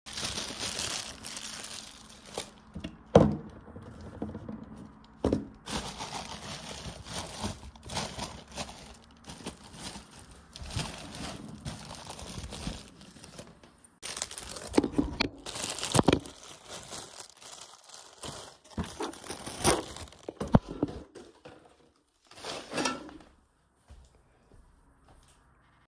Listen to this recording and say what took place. I was in the kitchen trying to eat something. I opened the cupboard door and picked up two different packets of chips to open them.